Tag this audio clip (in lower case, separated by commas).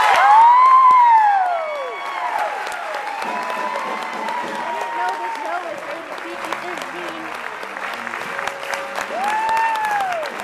music, speech, applause